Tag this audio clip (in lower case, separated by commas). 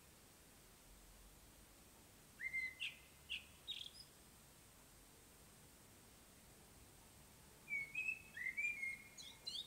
mynah bird singing